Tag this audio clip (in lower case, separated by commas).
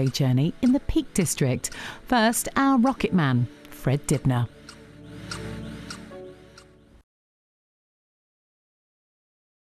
speech